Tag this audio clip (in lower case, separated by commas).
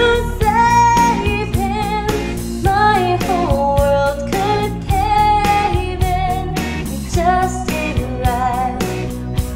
female singing, music